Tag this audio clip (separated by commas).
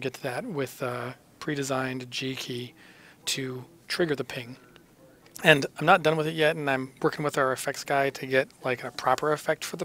Speech